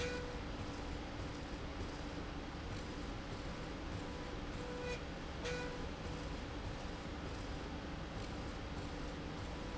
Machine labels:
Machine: slide rail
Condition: normal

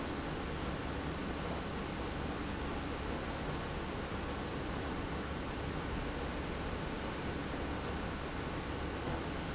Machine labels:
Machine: pump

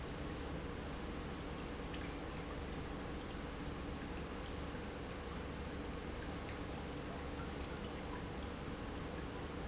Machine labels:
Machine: pump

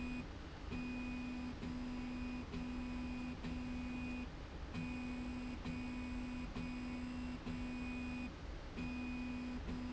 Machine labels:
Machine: slide rail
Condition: normal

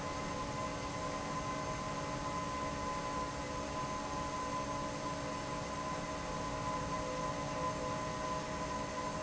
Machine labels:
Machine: fan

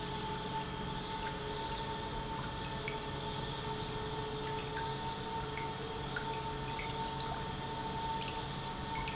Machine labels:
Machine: pump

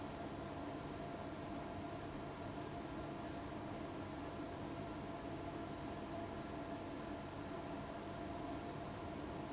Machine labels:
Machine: fan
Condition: abnormal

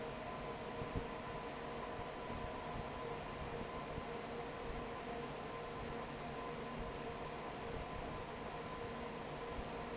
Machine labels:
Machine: fan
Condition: normal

